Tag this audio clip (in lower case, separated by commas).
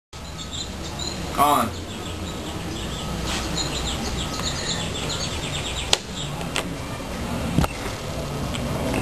bird vocalization, bird, chirp